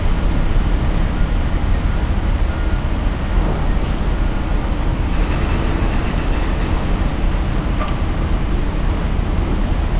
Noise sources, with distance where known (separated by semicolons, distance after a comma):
non-machinery impact